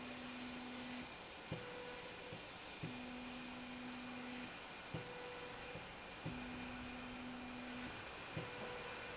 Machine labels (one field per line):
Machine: slide rail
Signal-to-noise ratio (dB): 6 dB